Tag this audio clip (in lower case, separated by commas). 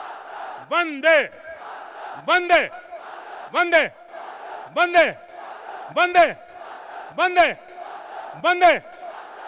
speech, crowd